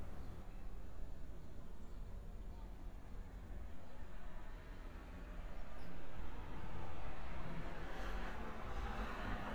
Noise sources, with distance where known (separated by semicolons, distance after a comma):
background noise